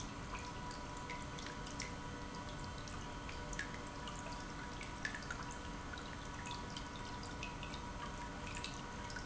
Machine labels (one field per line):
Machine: pump